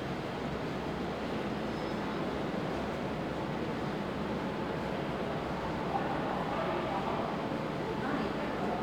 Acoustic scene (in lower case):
subway station